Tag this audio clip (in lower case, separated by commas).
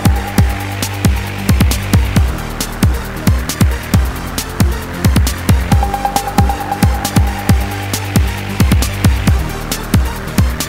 music